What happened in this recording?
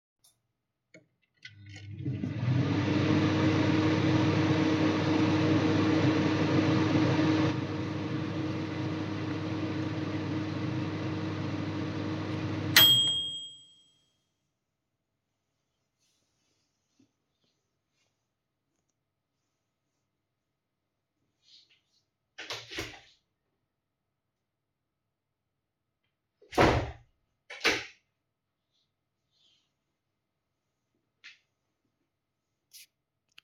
I turned on the microwave so the humming and beep were audible, then opened and closed the window.